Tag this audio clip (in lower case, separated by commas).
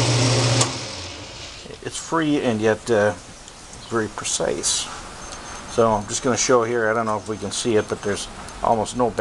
power tool, speech, tools